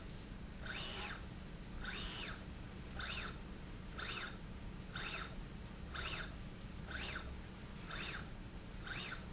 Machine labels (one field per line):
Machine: slide rail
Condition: normal